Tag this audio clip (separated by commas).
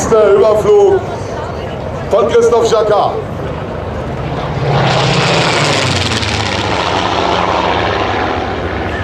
airplane flyby